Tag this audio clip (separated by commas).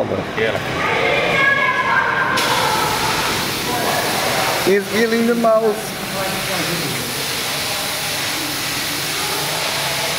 Speech